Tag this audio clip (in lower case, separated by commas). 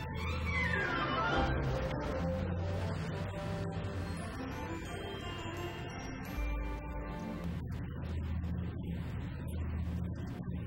speech, music